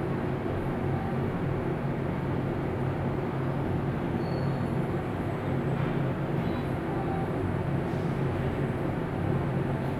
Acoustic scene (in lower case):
elevator